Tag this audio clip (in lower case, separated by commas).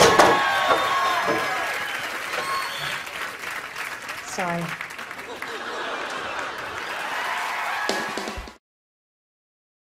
speech